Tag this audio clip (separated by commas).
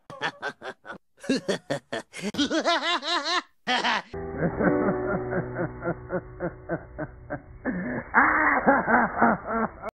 Music